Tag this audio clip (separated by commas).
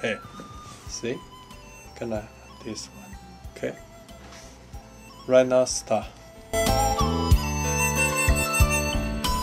Music, Speech